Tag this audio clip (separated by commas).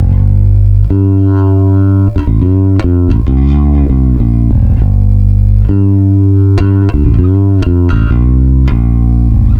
Musical instrument, Music, Plucked string instrument, Guitar, Bass guitar